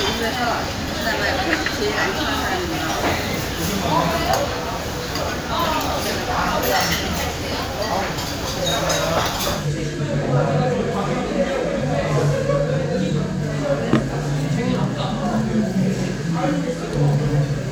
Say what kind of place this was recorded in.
crowded indoor space